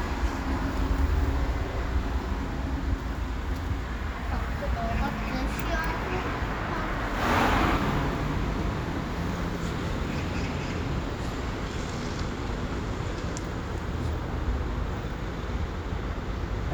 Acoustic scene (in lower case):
street